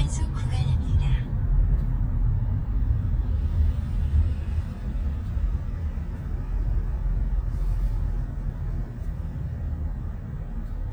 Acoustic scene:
car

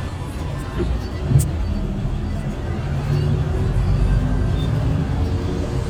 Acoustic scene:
bus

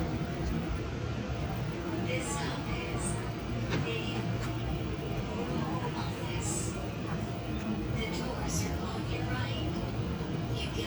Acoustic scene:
subway train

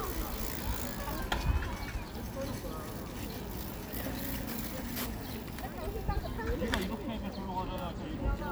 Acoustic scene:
park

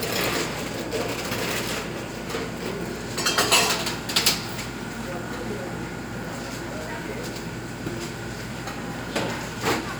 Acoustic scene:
cafe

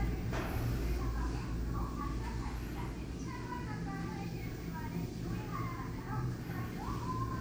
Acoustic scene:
elevator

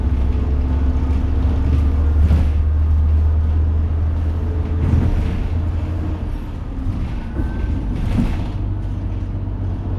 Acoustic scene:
bus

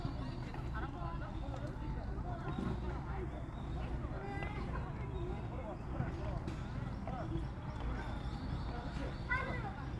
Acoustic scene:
park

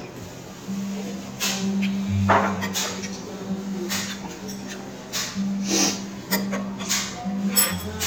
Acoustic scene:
restaurant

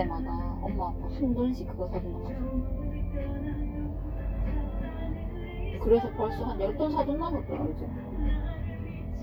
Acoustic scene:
car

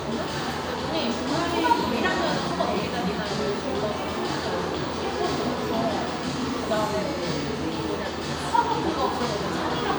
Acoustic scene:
cafe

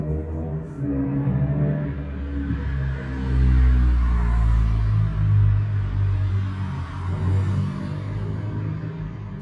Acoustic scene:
street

